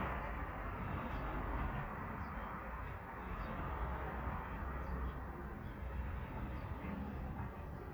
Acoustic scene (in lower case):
residential area